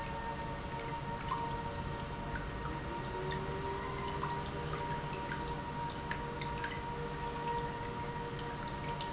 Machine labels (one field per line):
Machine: pump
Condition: normal